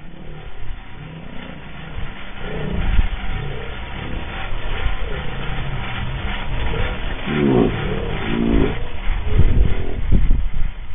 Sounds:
engine

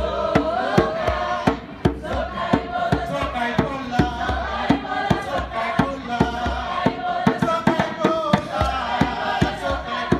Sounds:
percussion
drum

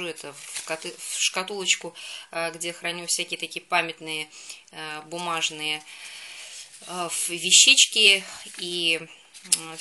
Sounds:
speech

